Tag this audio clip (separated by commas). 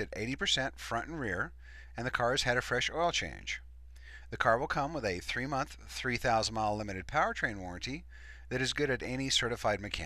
Speech